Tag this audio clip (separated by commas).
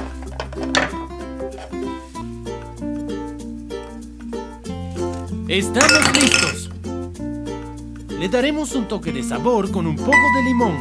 chopping food